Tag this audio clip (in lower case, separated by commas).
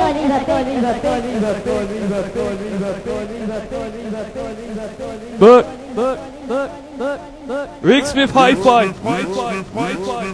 speech